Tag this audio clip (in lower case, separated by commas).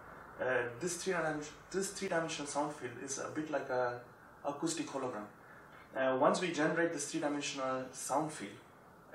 speech